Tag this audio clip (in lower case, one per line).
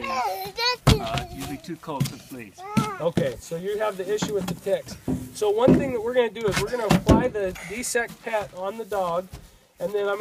speech